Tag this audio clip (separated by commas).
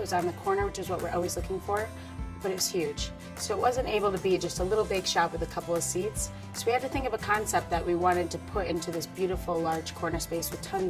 Music, Speech